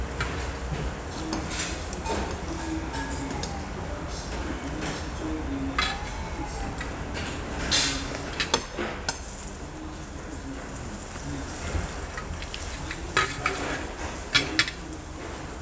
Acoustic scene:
restaurant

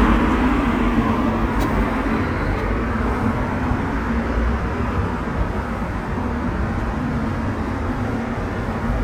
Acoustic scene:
street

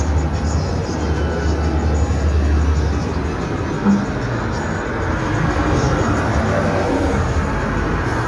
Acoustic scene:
street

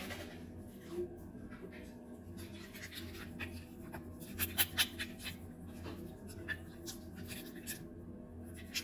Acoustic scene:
restroom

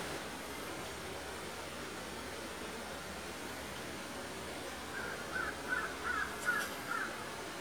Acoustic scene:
park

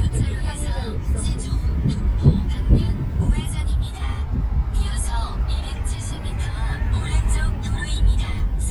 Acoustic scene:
car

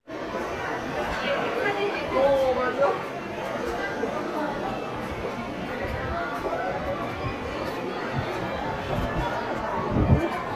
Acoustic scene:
crowded indoor space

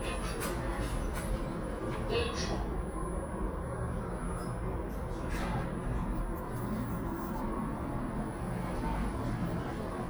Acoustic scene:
elevator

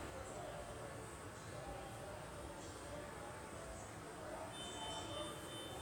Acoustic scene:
subway station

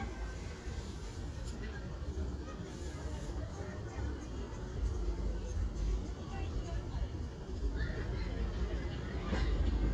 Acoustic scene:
residential area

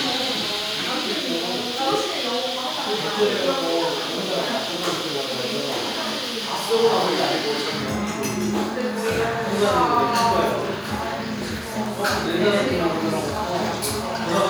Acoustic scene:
cafe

